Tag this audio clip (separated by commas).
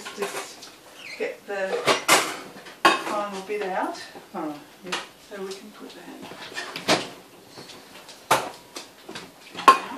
dishes, pots and pans, inside a small room, Speech